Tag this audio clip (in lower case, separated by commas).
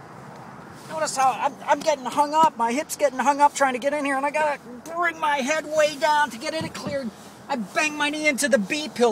speech